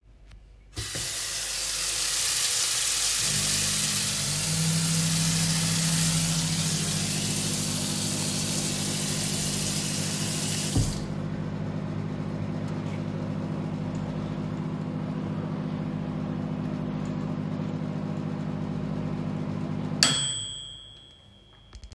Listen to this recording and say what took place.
a tap is turned on and running water is heard for several seconds. While it runs, the microwave is started and runs in the background. The microwave finishes with its bell sound.